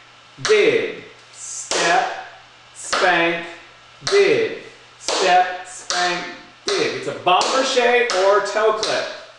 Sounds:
speech, tap

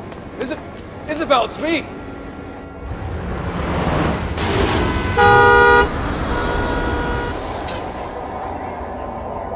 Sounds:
music, vehicle horn, speech

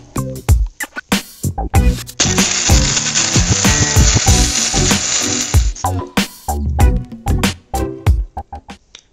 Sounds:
speech, music

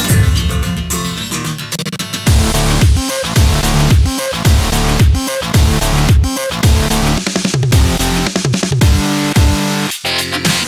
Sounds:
dubstep

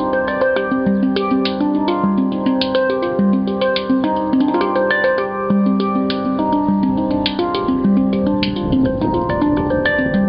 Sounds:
music, harmonic

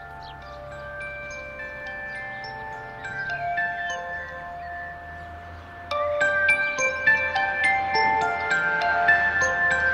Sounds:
mallet percussion, glockenspiel, xylophone

